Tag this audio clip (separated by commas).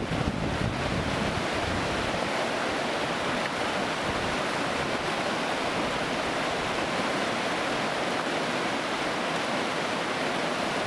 kayak rowing